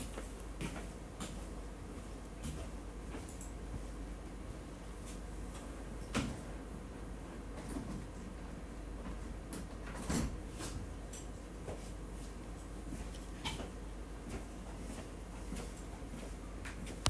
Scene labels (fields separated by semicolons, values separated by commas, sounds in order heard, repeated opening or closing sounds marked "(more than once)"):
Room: office; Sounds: footsteps, window, keys